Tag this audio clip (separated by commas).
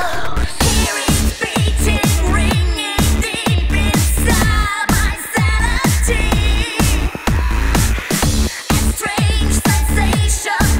Music